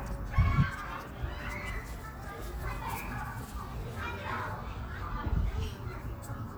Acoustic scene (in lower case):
residential area